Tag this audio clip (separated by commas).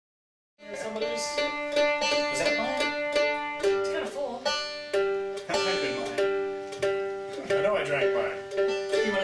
Guitar, Musical instrument, Banjo, Music, Plucked string instrument, Speech